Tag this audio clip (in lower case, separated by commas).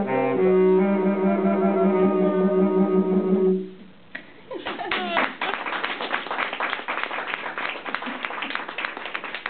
jazz, saxophone, music, musical instrument, clapping